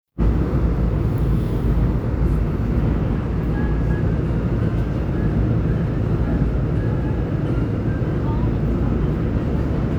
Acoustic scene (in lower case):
subway train